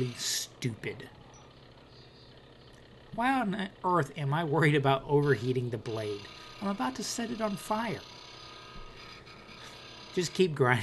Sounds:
Tools, Speech

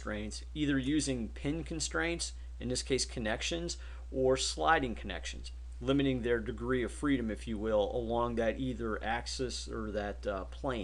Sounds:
Speech

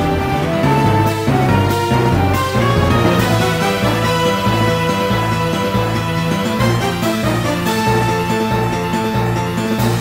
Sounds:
Music, Video game music

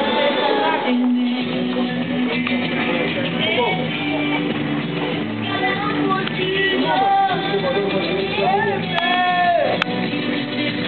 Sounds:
Music, Speech

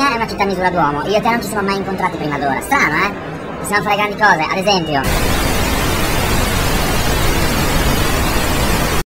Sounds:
Speech

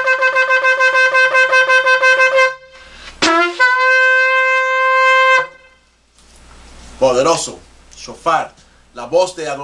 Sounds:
Shofar, Wind instrument

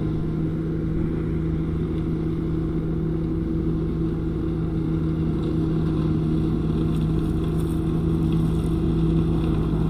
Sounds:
outside, urban or man-made, Vehicle

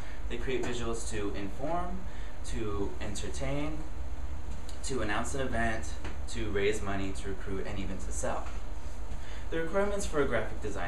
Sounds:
Speech, Narration, Male speech

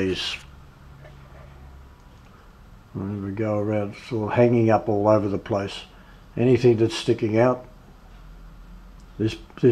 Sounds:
Speech

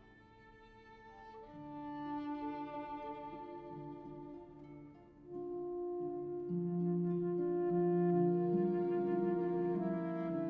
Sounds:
Musical instrument, Music, Violin

